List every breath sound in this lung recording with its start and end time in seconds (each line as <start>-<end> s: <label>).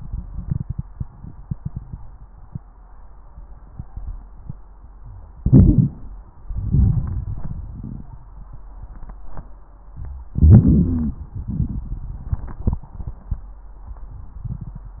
5.38-6.06 s: inhalation
5.38-6.06 s: crackles
6.38-8.65 s: exhalation
6.38-8.65 s: crackles
10.32-11.18 s: inhalation
10.32-11.18 s: crackles
11.23-13.42 s: exhalation
11.23-13.42 s: crackles